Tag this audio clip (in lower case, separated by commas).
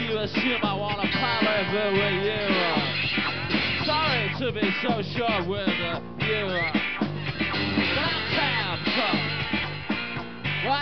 music